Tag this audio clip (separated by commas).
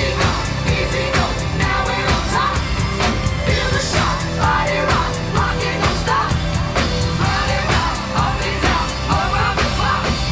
Music, Pop music, inside a public space, inside a large room or hall, Singing